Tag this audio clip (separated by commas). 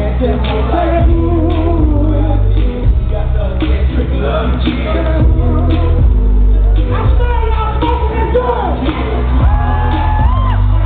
Speech, Music